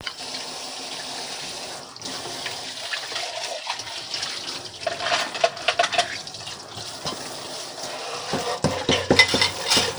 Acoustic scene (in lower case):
kitchen